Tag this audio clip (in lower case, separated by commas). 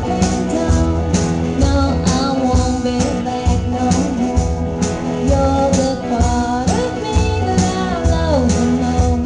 music